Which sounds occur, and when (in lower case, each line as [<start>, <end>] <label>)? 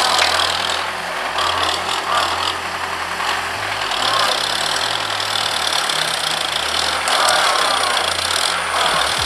[0.00, 0.83] revving
[0.00, 9.25] heavy engine (low frequency)
[0.00, 9.25] music
[1.32, 2.56] revving
[3.20, 3.43] revving
[3.82, 6.95] revving
[7.08, 8.58] revving
[8.77, 9.25] revving